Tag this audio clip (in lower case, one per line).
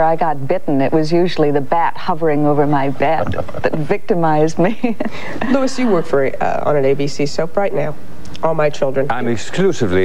female speech
speech